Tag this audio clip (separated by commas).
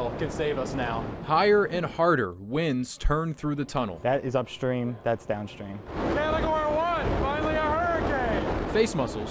Speech